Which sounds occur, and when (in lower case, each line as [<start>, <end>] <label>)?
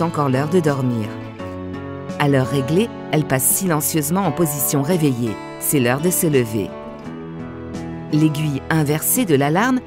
[0.00, 1.14] female speech
[0.00, 9.85] music
[2.14, 2.88] female speech
[3.09, 5.32] female speech
[5.59, 6.71] female speech
[8.06, 8.58] female speech
[8.71, 9.79] female speech